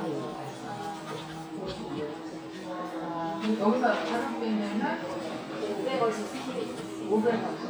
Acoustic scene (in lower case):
crowded indoor space